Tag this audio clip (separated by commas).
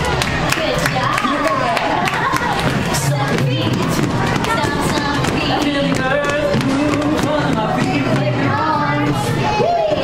Music, Speech